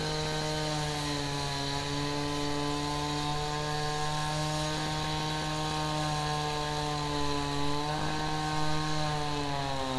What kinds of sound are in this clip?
unidentified powered saw